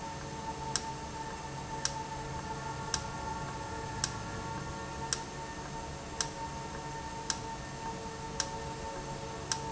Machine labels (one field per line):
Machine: valve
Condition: normal